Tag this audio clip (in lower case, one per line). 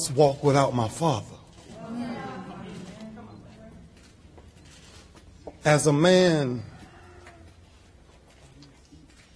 speech
male speech
narration